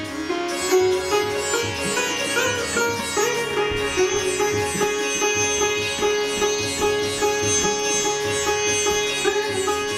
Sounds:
playing sitar

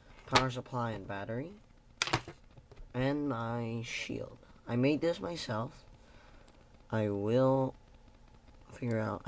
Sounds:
speech

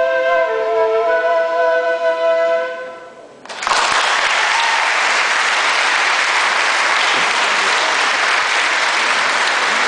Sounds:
classical music, musical instrument, applause, music

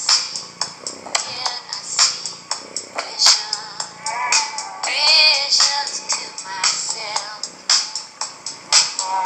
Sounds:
music

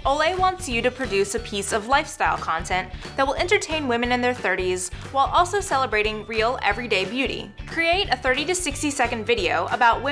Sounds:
music, speech

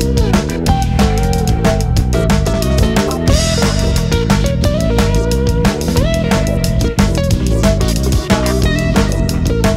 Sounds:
music

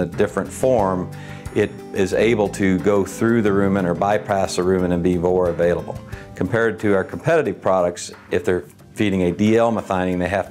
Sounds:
speech, music

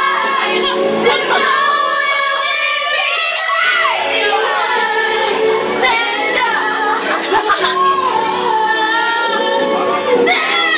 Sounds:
female singing, choir, music

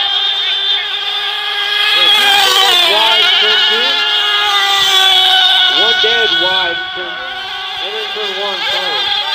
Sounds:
speech

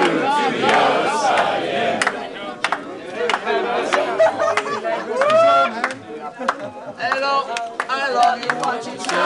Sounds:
male singing, female singing, speech, choir

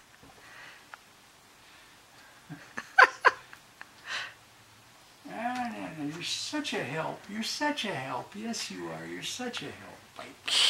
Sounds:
speech

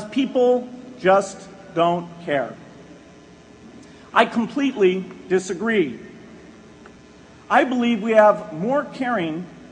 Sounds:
speech, man speaking, narration

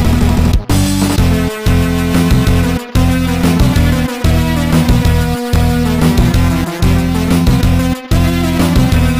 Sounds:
music, pop music

